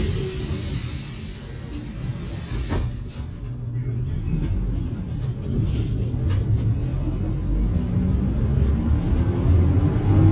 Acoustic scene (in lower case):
bus